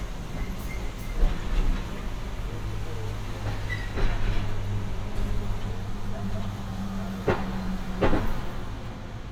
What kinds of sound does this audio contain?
engine of unclear size